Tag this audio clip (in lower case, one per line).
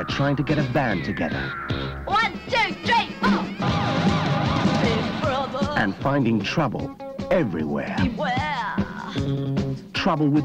music
speech